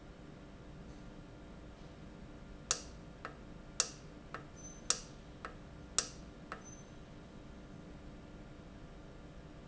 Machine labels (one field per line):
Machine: valve